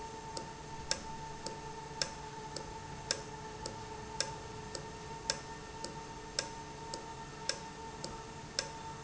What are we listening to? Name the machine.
valve